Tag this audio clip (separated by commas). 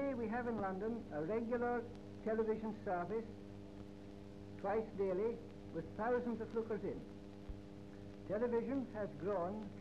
Speech